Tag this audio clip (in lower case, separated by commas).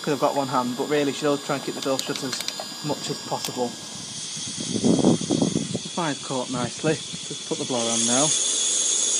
engine, speech